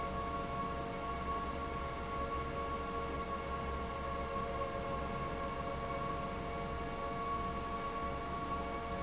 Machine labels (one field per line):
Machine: fan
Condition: abnormal